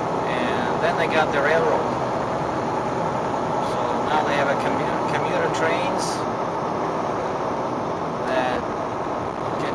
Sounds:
car
vehicle

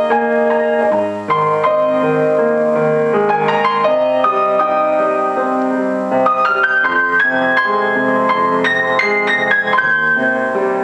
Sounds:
music

